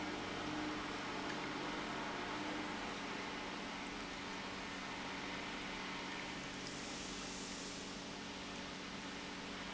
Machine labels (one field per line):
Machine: pump